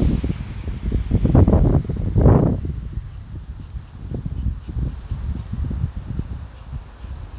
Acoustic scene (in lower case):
residential area